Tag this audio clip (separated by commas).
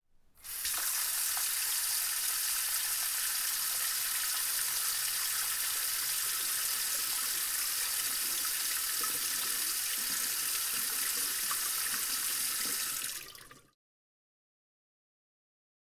faucet, home sounds, Sink (filling or washing)